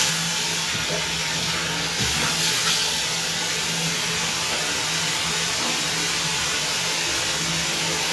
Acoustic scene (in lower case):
restroom